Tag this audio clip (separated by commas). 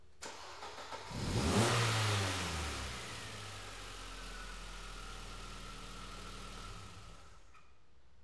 Engine, Motor vehicle (road), revving, Car, Vehicle, Engine starting